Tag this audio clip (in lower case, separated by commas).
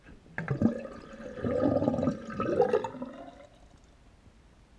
home sounds, sink (filling or washing)